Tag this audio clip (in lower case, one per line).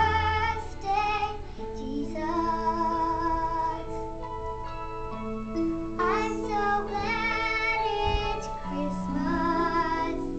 child singing